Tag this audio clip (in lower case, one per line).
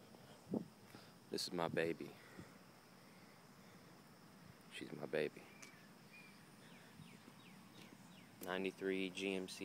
speech